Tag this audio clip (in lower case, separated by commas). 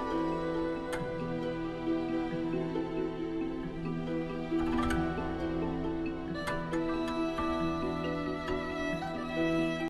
music